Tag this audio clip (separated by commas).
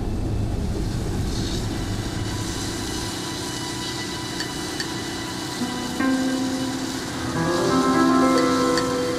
Music